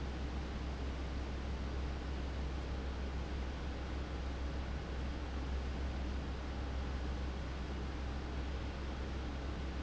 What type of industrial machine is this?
fan